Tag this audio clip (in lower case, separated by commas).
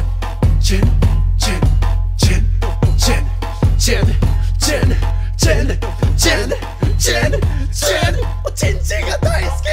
rapping